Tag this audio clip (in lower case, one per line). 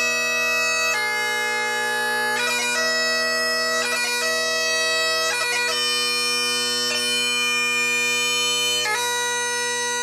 bagpipes
wind instrument